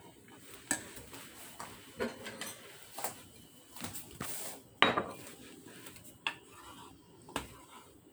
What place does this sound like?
kitchen